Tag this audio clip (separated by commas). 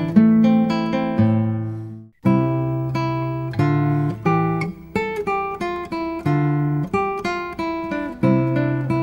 Plucked string instrument, Acoustic guitar, Musical instrument, Music, Guitar